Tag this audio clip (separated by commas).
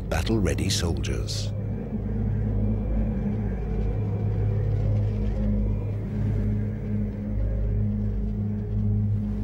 Speech, Music, outside, rural or natural